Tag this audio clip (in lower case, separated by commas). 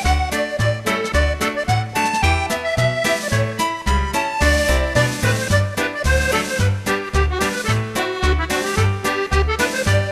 music